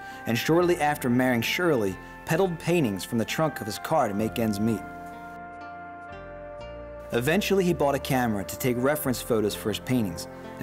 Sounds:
Music, Speech

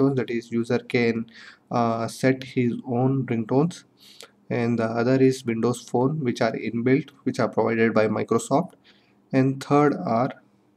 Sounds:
Speech

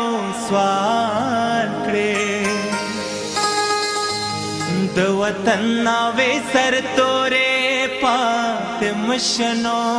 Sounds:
Music, Independent music

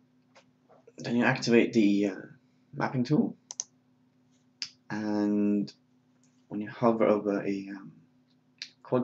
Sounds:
Speech

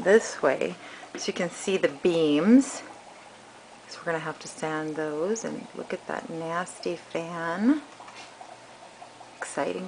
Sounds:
Speech

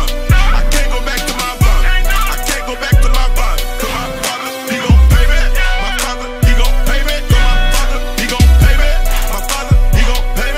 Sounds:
Music

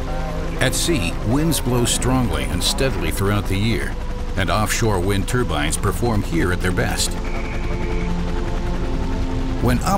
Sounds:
Speech, Music

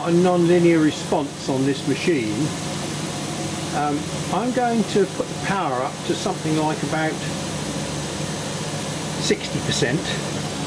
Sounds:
Speech

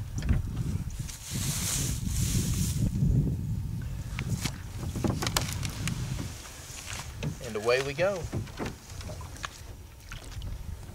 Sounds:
Speech, outside, rural or natural

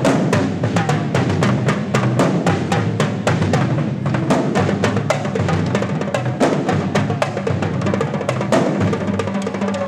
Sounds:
Percussion, Music

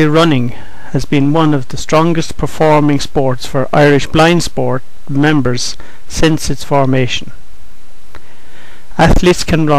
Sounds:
Speech

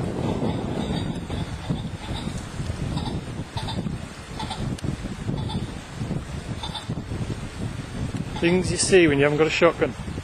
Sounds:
pheasant crowing

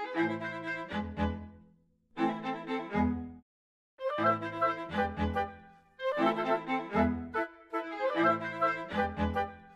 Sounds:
Music

